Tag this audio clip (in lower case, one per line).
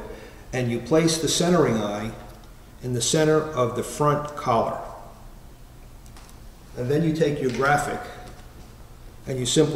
speech